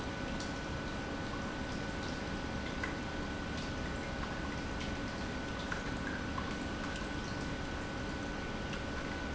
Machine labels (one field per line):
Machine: pump